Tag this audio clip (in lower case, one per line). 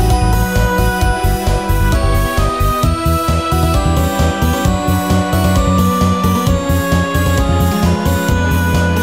music